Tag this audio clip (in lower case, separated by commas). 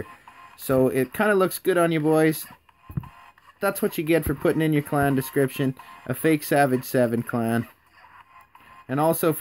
music, inside a small room, speech